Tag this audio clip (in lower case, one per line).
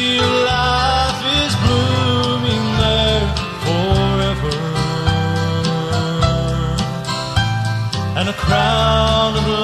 music